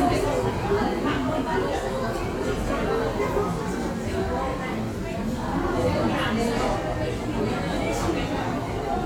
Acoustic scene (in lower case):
crowded indoor space